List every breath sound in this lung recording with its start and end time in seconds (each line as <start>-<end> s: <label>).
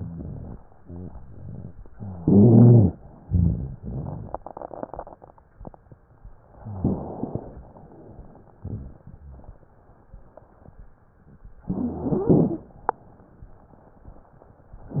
6.57-7.22 s: rhonchi
6.59-7.60 s: inhalation
11.61-12.76 s: stridor
11.65-12.74 s: inhalation
14.90-15.00 s: rhonchi
14.92-15.00 s: inhalation